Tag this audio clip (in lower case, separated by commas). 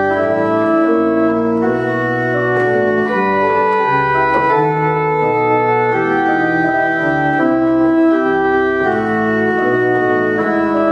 organ, piano, music, keyboard (musical), musical instrument